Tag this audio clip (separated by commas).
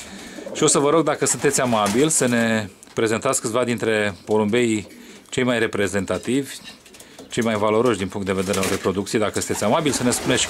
Bird, Pigeon, inside a small room, Speech